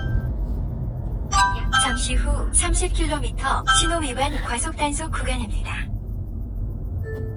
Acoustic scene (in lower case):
car